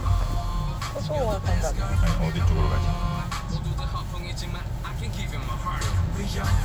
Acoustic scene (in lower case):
car